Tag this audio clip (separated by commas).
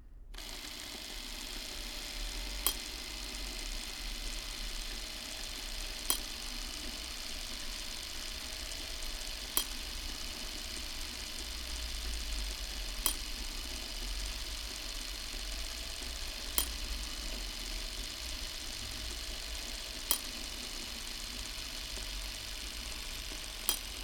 Mechanisms, Camera